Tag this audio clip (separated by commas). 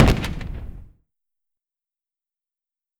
gunfire, Explosion